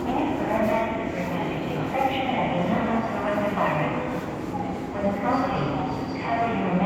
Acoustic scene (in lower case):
subway station